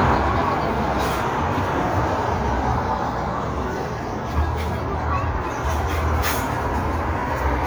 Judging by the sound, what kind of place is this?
street